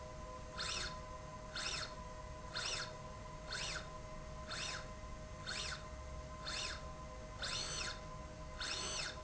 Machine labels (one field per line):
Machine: slide rail